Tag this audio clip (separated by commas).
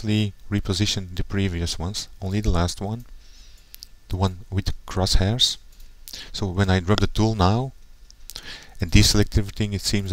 Speech